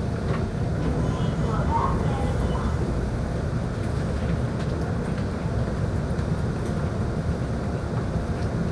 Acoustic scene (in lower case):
subway train